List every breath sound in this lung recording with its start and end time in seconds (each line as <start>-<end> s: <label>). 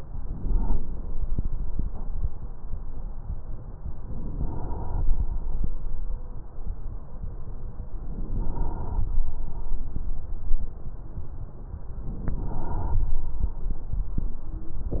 0.00-0.81 s: inhalation
4.06-5.27 s: inhalation
7.97-9.13 s: inhalation